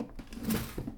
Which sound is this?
wooden drawer closing